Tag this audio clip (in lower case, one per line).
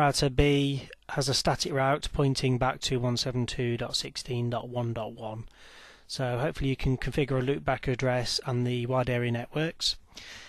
speech